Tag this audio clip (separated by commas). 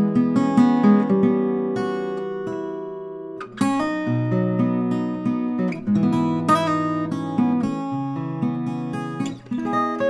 Guitar, Musical instrument, Acoustic guitar, Plucked string instrument, playing acoustic guitar, Music